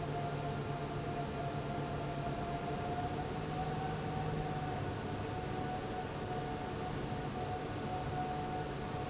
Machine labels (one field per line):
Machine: fan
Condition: abnormal